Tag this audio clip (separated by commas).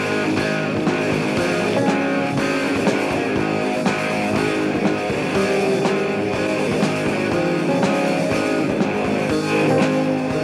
Music